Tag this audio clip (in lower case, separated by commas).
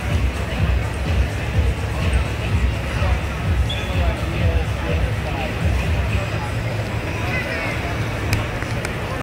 music, speech